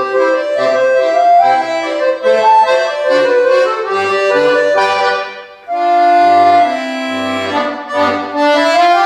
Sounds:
Music

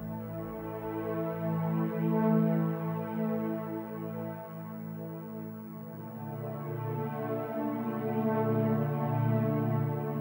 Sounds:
Music

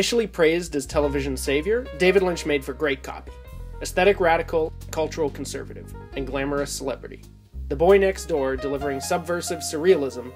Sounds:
Music, Speech

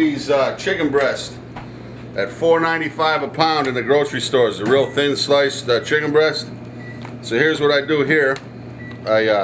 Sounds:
Speech

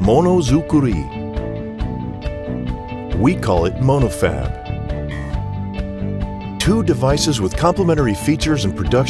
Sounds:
Music, Speech

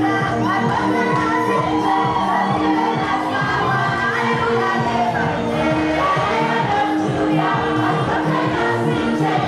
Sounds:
Music

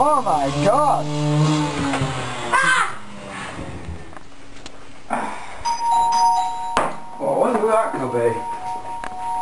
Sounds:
Speech

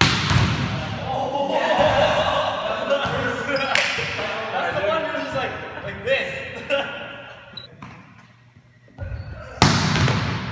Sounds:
basketball bounce

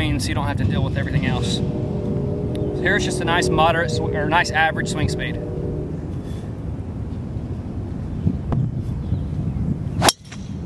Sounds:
Speech

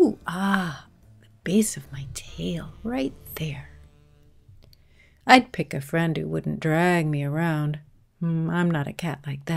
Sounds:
Speech

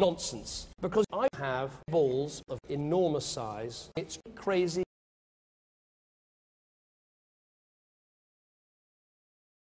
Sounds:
Narration, Speech, man speaking

